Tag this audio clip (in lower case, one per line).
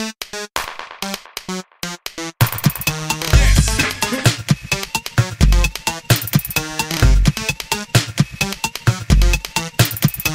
soundtrack music
video game music
music